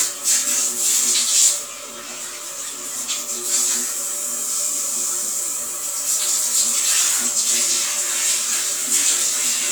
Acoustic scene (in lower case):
restroom